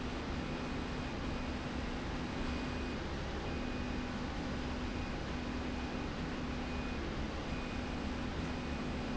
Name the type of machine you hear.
slide rail